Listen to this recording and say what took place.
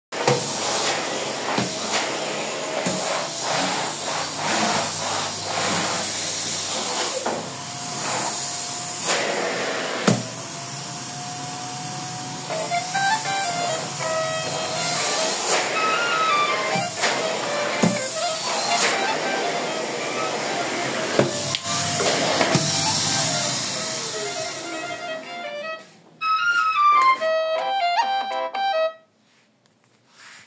I was cleaning with the vacuum cleaner when suddenly I got an important call.